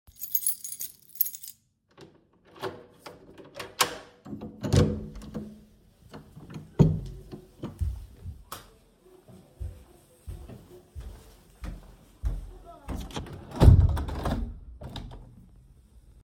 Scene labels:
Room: hallway, bedroom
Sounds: keys, door, light switch, footsteps, window

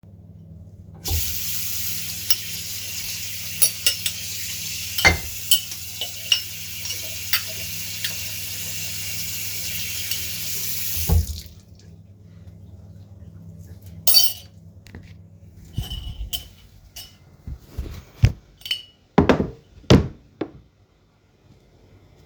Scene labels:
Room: kitchen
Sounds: running water, cutlery and dishes

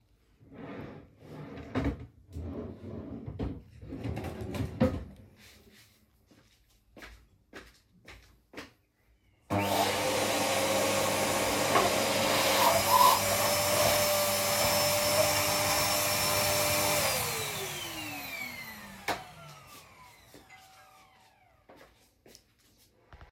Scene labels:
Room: living room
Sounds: wardrobe or drawer, footsteps, vacuum cleaner, bell ringing

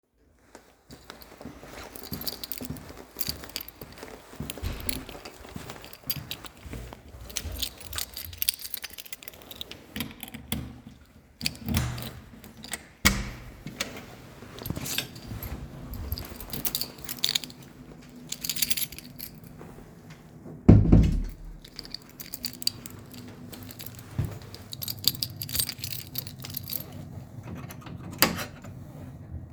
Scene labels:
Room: hallway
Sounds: footsteps, keys, door

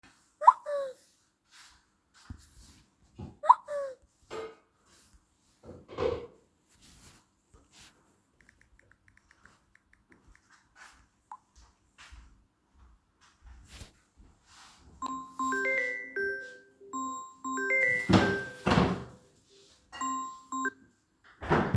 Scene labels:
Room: kitchen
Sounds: phone ringing, footsteps, cutlery and dishes, keyboard typing, door

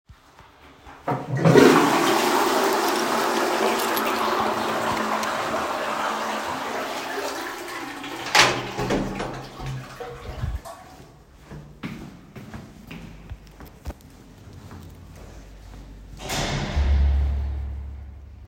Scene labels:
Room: lavatory, hallway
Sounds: toilet flushing, keys, door (more than once), footsteps

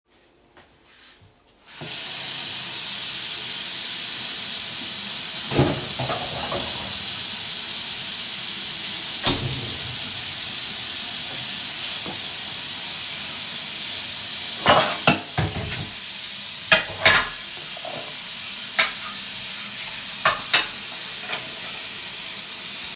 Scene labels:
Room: kitchen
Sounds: running water, cutlery and dishes

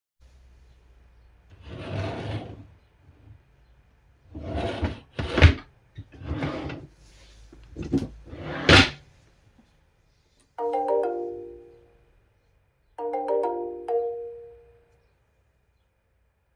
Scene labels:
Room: office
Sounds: wardrobe or drawer (more than once), phone ringing

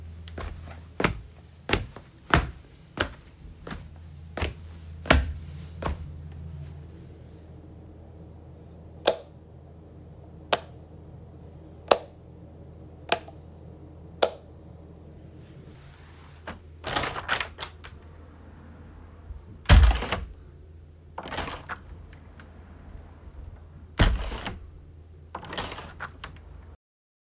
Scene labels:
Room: bathroom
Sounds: footsteps, light switch, window (more than once)

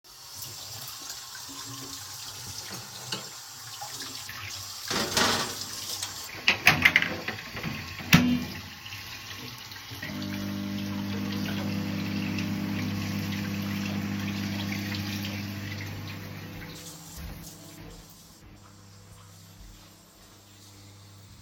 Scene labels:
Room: kitchen, bedroom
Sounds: running water, cutlery and dishes, microwave, footsteps

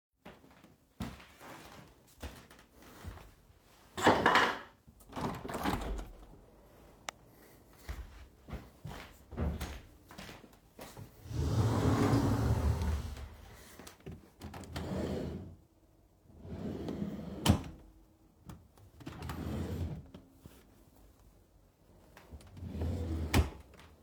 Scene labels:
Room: bedroom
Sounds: footsteps, window, wardrobe or drawer (more than once)

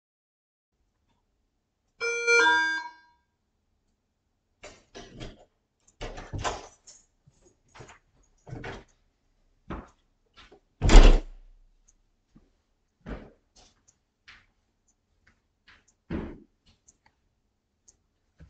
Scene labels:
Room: hallway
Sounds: bell ringing, footsteps, door

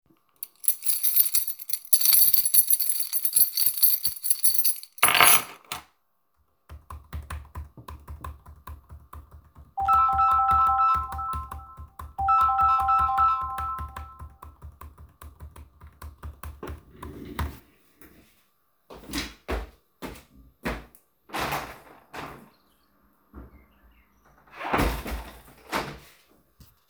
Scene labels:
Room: living room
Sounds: keys, keyboard typing, phone ringing, footsteps, window (more than once)

